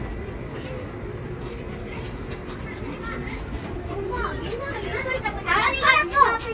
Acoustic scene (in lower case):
residential area